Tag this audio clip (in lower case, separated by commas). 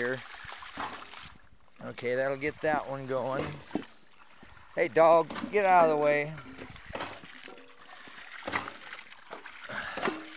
water, pump (liquid), pumping water